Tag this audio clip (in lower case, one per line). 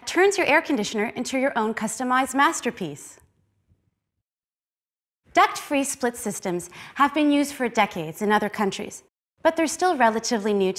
speech